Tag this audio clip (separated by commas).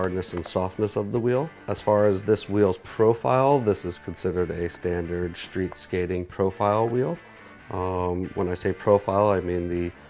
Speech, Music